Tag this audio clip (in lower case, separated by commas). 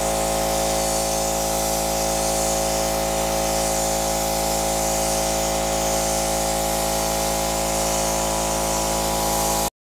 spray